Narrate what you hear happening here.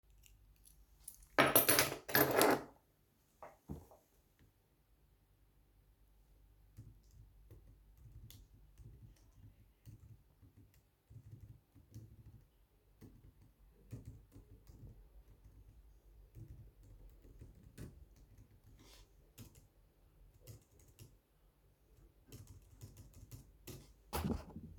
I put my keychain on the table and start typing on my laptop.